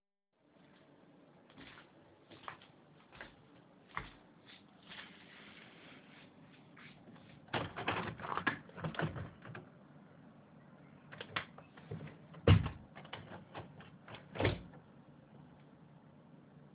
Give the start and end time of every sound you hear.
[1.50, 7.40] footsteps
[7.22, 9.68] window
[10.99, 14.87] window

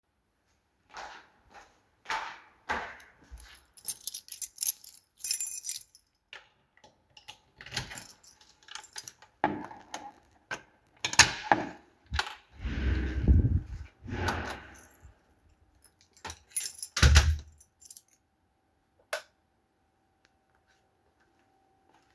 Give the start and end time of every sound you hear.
[0.92, 3.21] footsteps
[3.36, 6.04] keys
[6.29, 9.22] keys
[9.34, 10.12] door
[10.88, 14.99] door
[15.75, 18.17] keys
[16.91, 17.47] door
[19.06, 19.27] light switch

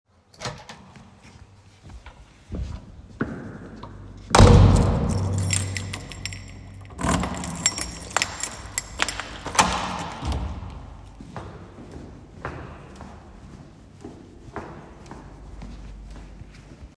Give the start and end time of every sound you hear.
[0.12, 0.83] door
[4.12, 5.30] door
[4.95, 11.06] keys
[11.16, 16.96] footsteps

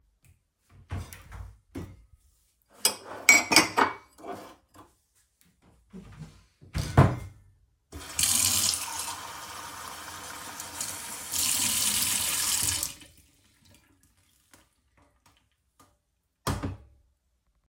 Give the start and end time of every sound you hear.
[0.00, 0.69] footsteps
[0.76, 2.24] wardrobe or drawer
[2.69, 4.92] cutlery and dishes
[5.45, 6.46] footsteps
[6.59, 7.55] wardrobe or drawer
[7.93, 13.15] running water
[16.23, 17.05] wardrobe or drawer

